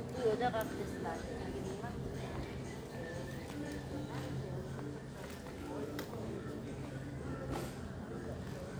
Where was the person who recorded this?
in a crowded indoor space